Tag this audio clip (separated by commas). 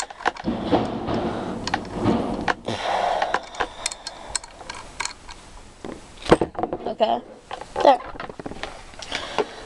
Speech